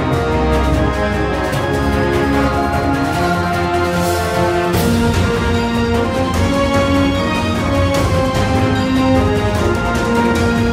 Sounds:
Theme music, Music

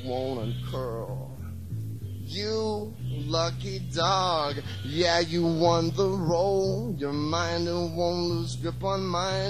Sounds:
Music, Speech

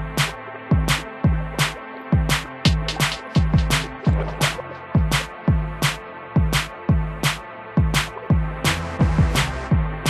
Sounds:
Snare drum, Percussion, Drum, Bass drum

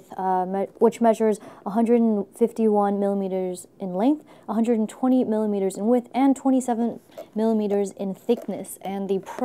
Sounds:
Speech

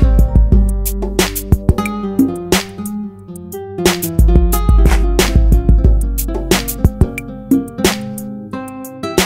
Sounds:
Electronic music, Ambient music, Music, Electronic dance music

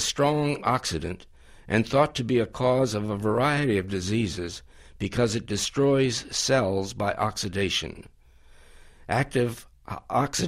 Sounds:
Speech

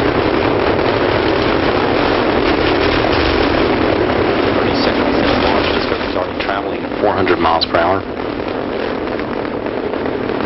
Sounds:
Speech

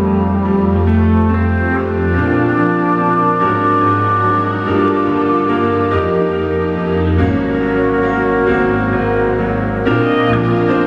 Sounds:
Music, Wedding music

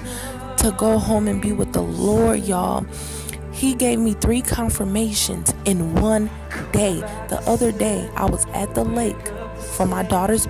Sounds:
Musical instrument, Speech, Music

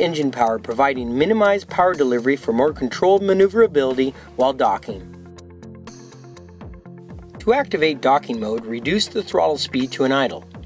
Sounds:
Music, Speech

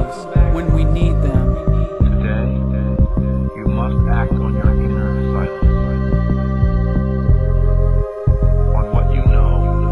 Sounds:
Music, Speech

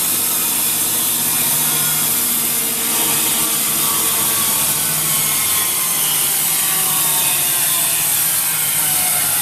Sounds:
Tools

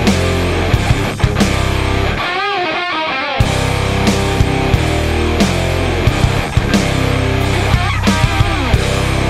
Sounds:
Musical instrument, Plucked string instrument, Strum, Music, Electric guitar, Guitar

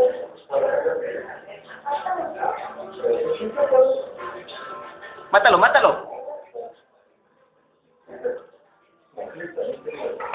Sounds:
Music, Speech

